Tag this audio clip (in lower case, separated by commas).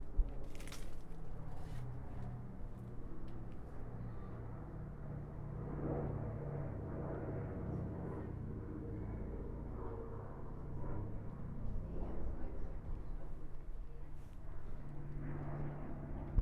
aircraft, vehicle